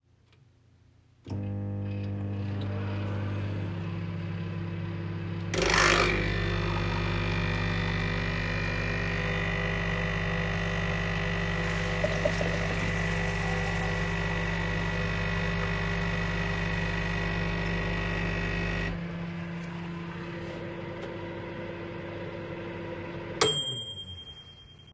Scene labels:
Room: kitchen; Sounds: microwave, coffee machine, running water

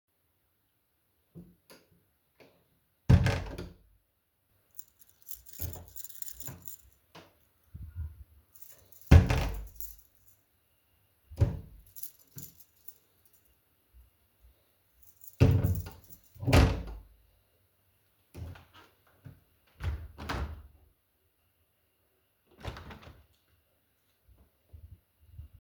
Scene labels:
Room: hallway; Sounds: wardrobe or drawer (more than once), keys, door (more than once)

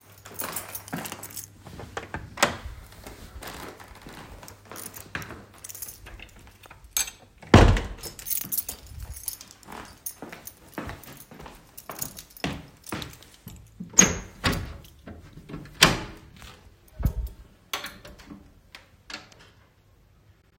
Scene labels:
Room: hallway, office; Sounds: keys, footsteps, door (more than once), window

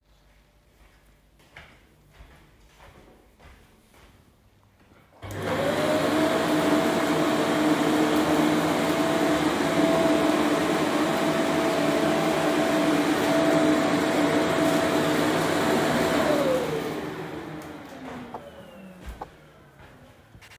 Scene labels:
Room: bedroom; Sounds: footsteps, vacuum cleaner

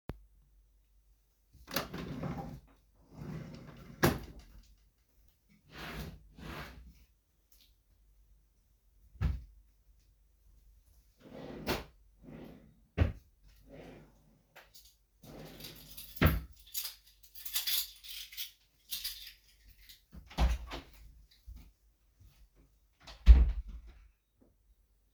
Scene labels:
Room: bedroom; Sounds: wardrobe or drawer (more than once), keys, door (more than once), footsteps

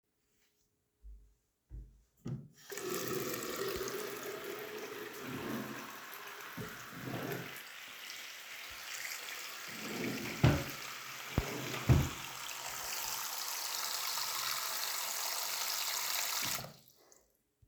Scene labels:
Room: bathroom; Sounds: running water, wardrobe or drawer (more than once)

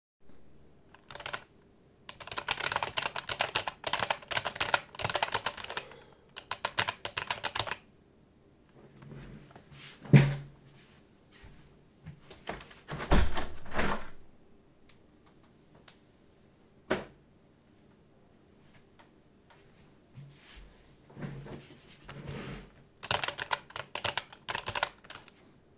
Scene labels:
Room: office; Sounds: keyboard typing, window

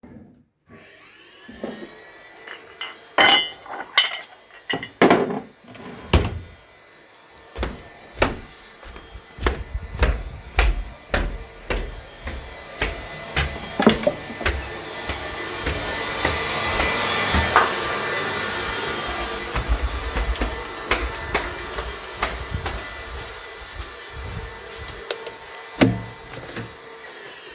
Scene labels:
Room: kitchen; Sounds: vacuum cleaner, cutlery and dishes, microwave

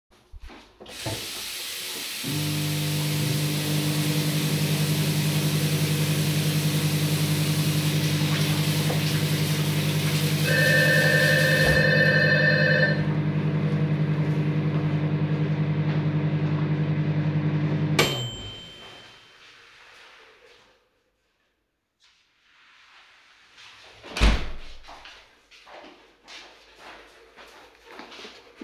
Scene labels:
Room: kitchen; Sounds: running water, microwave, bell ringing, door, footsteps

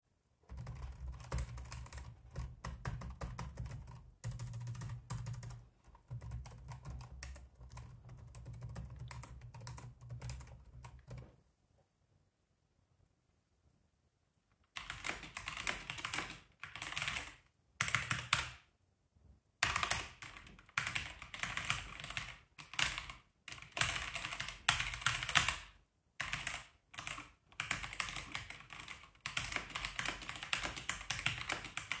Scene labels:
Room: office; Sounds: keyboard typing

